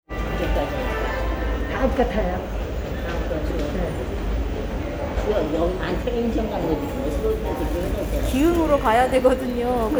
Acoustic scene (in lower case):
subway station